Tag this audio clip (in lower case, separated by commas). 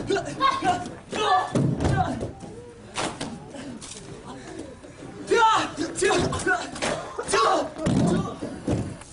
inside a large room or hall, speech